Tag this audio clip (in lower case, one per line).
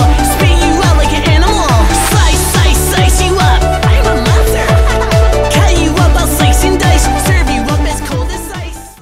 music